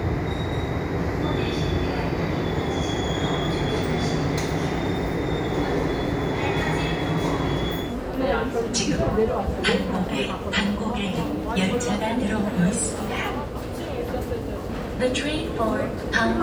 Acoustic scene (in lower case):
subway station